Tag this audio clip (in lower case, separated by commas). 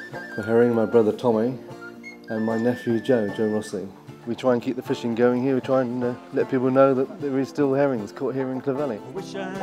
speech, music